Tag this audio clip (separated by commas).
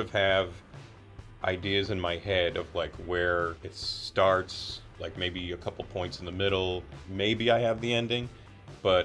Music, Speech